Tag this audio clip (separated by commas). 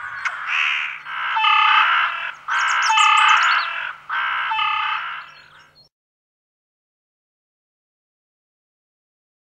magpie calling